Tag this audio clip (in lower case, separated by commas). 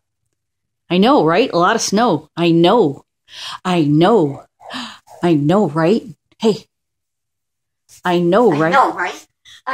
speech